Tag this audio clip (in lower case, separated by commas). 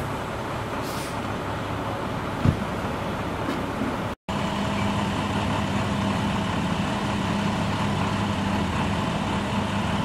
vehicle, car, motor vehicle (road)